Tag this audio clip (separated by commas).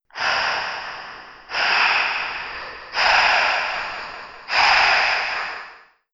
Respiratory sounds, Breathing